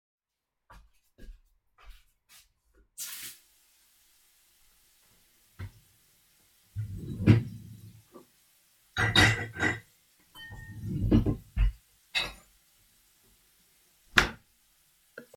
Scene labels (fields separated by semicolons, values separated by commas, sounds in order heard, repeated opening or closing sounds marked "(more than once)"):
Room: kitchen; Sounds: footsteps, running water, cutlery and dishes